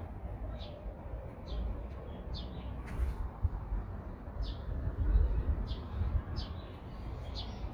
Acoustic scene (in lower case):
residential area